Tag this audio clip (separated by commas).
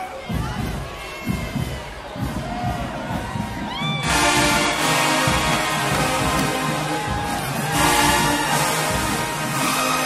people marching